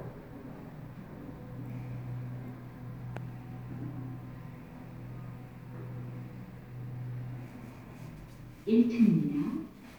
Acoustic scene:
elevator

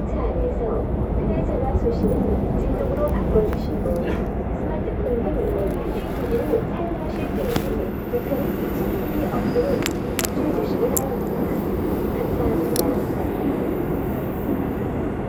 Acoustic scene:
subway train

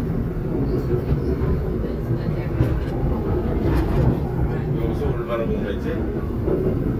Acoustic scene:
subway train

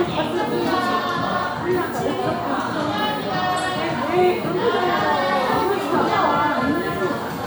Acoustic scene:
crowded indoor space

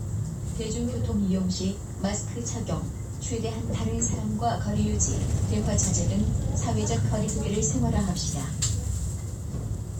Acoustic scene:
bus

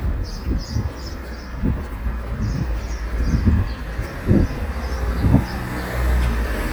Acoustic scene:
residential area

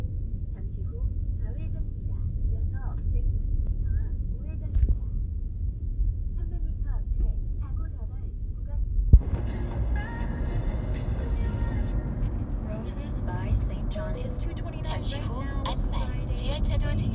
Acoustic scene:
car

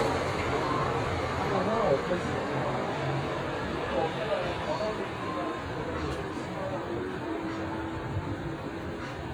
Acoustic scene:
street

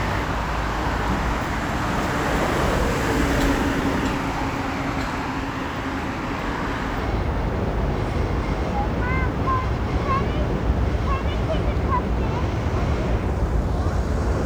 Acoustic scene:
street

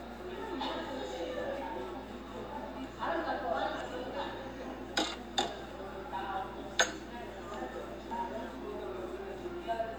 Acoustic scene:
cafe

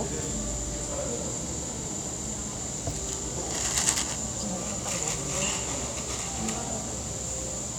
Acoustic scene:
cafe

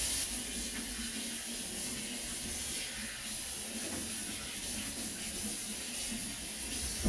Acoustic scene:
kitchen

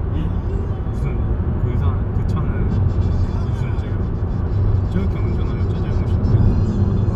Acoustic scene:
car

